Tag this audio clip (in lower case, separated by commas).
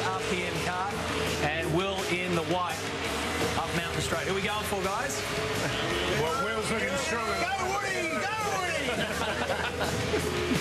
music, speech